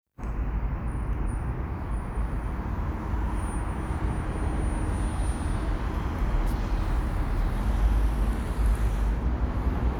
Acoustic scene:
residential area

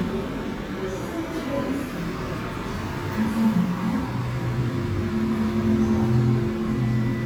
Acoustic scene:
cafe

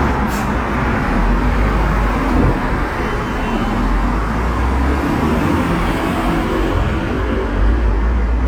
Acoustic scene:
street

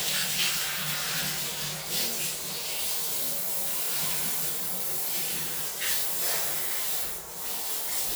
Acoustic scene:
restroom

